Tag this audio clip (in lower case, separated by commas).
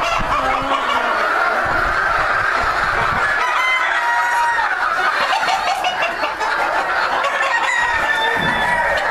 cluck, chicken, chicken clucking